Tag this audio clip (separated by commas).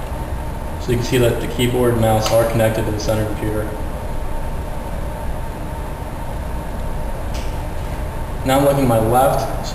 Speech